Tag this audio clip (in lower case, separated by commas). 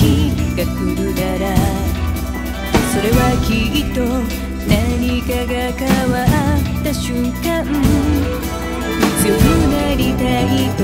music